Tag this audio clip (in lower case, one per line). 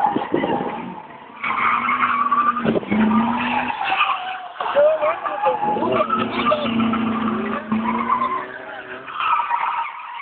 vehicle
auto racing
speech
skidding